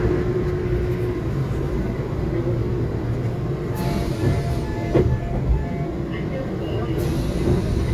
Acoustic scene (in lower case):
subway train